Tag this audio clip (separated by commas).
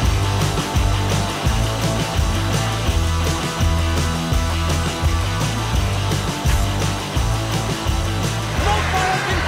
outside, urban or man-made, Music, Speech